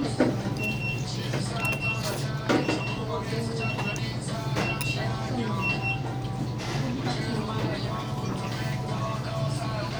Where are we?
in a restaurant